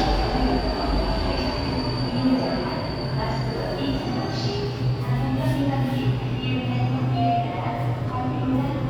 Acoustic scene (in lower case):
subway station